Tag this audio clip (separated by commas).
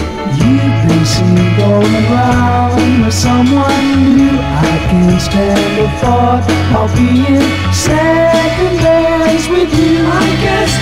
Music